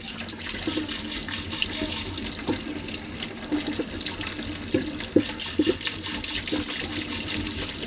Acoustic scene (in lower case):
kitchen